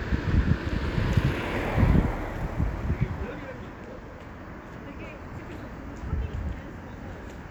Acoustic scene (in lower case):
street